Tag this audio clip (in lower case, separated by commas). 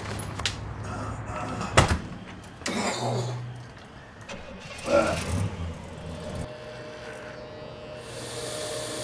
speech